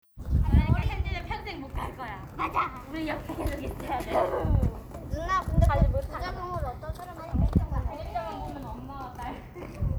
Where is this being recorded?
in a residential area